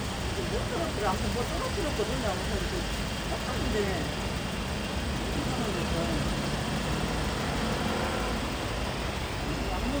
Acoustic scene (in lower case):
street